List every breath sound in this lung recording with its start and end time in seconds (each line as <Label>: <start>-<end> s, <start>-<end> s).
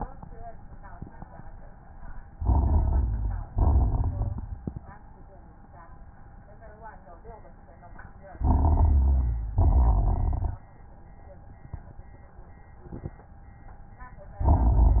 Inhalation: 2.33-3.40 s, 8.41-9.47 s
Exhalation: 3.51-4.57 s, 9.62-10.68 s
Crackles: 2.33-3.40 s, 3.51-4.57 s, 8.41-9.47 s, 9.62-10.68 s